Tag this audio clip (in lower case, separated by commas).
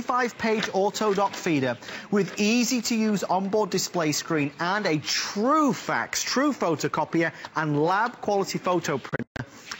printer, speech